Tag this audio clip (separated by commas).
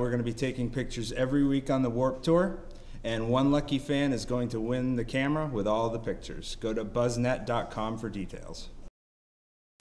Speech